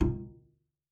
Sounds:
Musical instrument, Music, Bowed string instrument

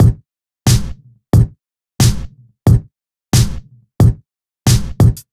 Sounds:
Musical instrument, Music, Drum, Percussion

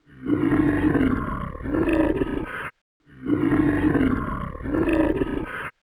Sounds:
Animal, Wild animals

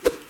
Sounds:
swoosh

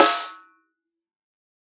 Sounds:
Snare drum, Music, Percussion, Drum, Musical instrument

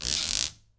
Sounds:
Squeak

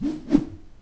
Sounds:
swoosh

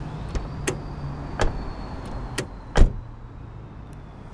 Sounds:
Motor vehicle (road), Car, Vehicle

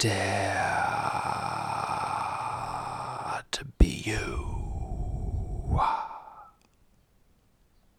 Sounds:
Whispering, Human voice

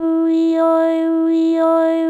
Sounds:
Human voice

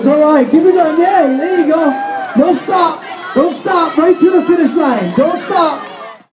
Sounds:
Human voice, Yell, Human group actions, Cheering, Shout

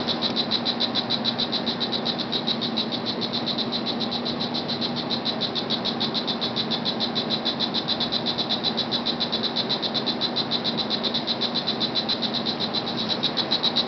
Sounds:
Insect, Wild animals, Animal

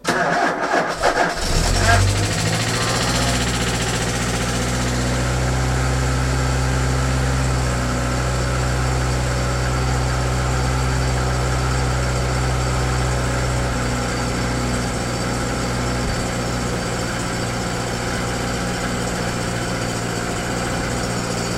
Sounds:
Engine starting, Idling, Engine

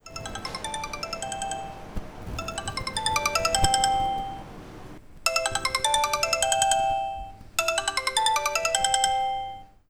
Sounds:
Ringtone, Telephone, Alarm

